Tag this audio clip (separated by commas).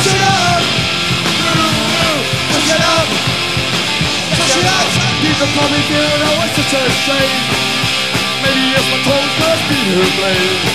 Music